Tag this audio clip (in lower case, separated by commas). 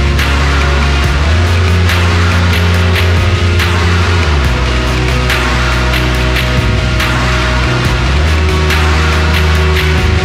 music